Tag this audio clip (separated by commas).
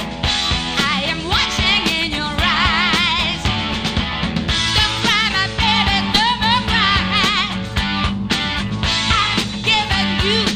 Music